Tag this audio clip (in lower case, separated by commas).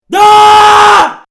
human voice, screaming